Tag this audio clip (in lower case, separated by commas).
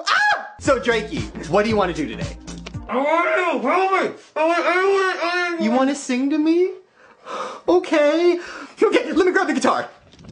speech, music